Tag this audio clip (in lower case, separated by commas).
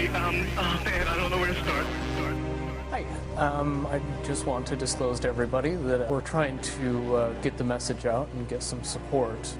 speech, music